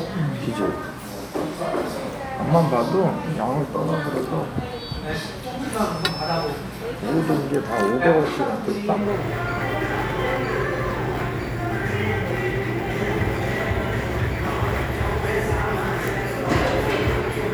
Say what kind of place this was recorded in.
crowded indoor space